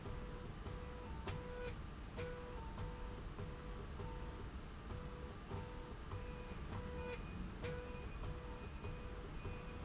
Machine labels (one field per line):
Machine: slide rail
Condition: normal